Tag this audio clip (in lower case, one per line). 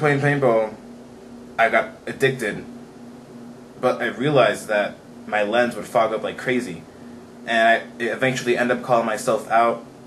speech